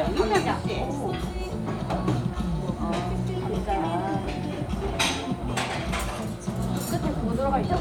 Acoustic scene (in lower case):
restaurant